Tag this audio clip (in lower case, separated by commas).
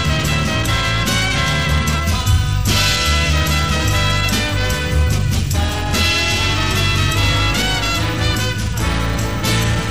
swing music, music